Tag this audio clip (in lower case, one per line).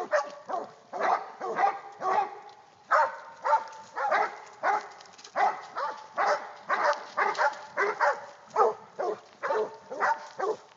dog baying